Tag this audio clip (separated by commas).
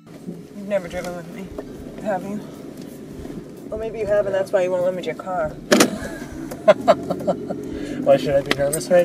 Speech, Laughter, Music